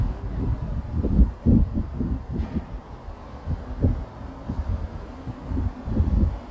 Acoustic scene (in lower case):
residential area